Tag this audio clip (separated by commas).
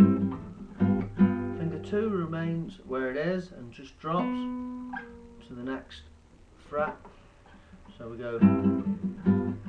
Musical instrument, Guitar, Plucked string instrument, Music, Speech